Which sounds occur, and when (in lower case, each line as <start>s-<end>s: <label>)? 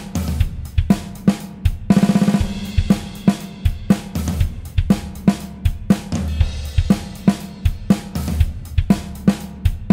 0.0s-9.9s: music